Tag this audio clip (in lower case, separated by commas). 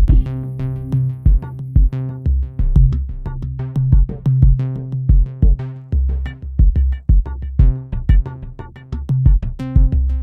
drum machine, music